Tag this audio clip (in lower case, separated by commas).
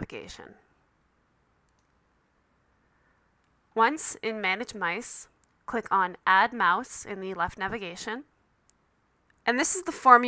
speech